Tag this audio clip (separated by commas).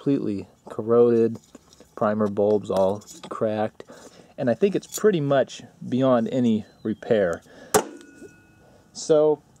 Speech